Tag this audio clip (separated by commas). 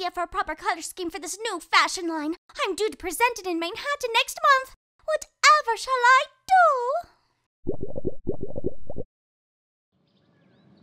inside a small room, Speech